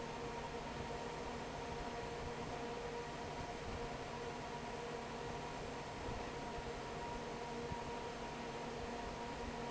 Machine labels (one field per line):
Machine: fan